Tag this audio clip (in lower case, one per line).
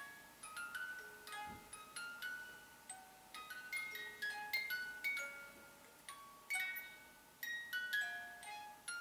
inside a small room
music